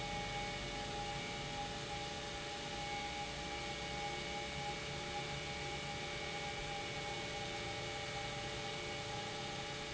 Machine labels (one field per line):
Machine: pump